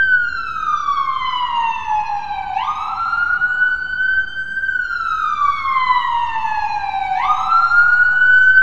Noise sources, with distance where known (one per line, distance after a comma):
siren, near